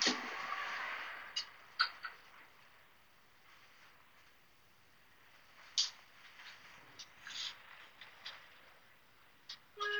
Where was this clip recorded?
in an elevator